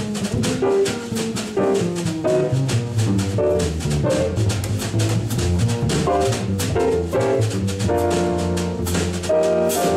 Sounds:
Piano, Musical instrument, Music, Drum kit, Drum, Jazz, Bowed string instrument, Double bass

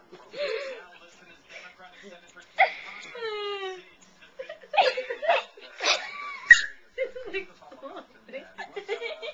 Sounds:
Speech, Laughter

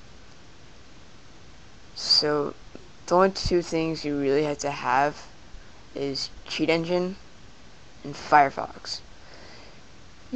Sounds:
Speech

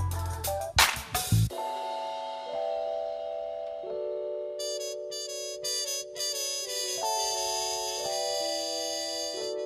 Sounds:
Music

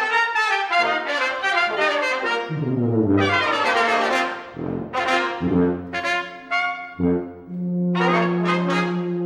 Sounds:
Music, Trombone, Musical instrument, Brass instrument, Trumpet, playing trombone

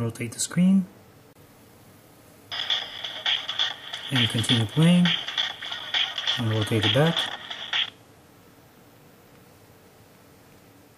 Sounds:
Speech, Music, inside a small room

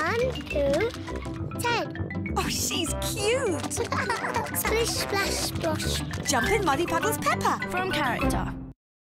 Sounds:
Music, Speech

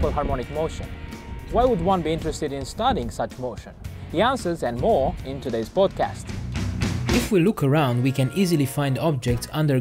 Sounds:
Speech, Music

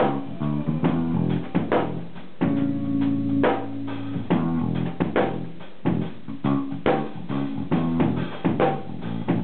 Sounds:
Music, Drum, Musical instrument, Drum kit

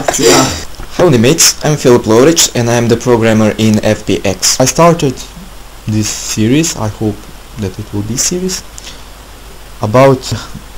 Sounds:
Speech

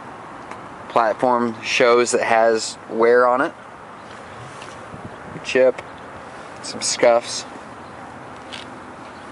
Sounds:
Walk, Speech

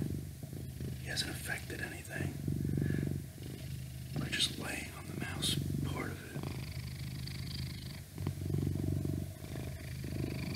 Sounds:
cat purring

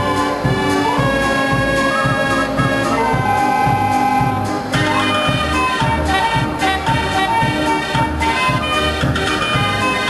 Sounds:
Organ, Hammond organ

